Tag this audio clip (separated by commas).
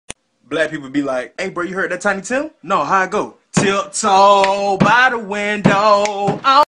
Speech